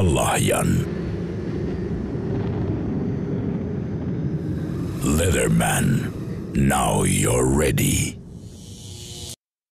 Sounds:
speech, music

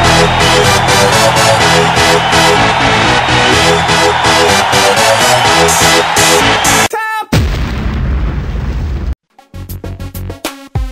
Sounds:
music, speech

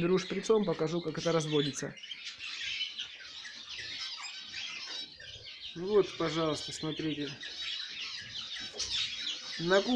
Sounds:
canary calling

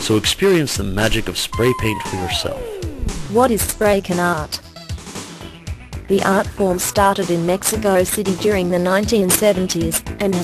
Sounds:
speech, music

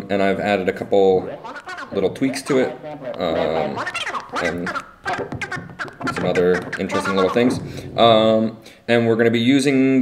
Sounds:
speech, sampler

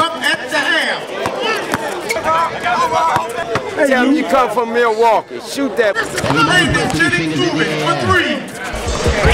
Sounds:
basketball bounce, music, speech, outside, urban or man-made

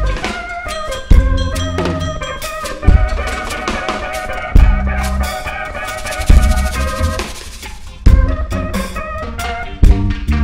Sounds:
percussion, bass drum, snare drum, drum, playing bass drum, rimshot

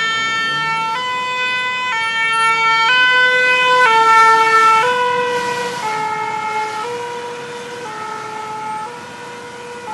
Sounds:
fire truck siren

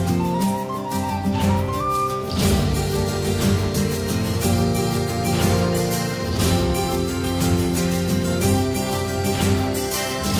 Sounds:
plucked string instrument, musical instrument, guitar, music

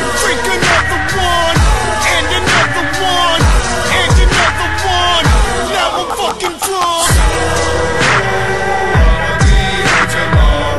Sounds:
music

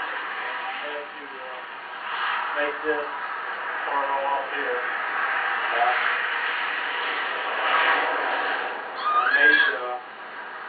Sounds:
heavy engine (low frequency), engine, speech, vehicle

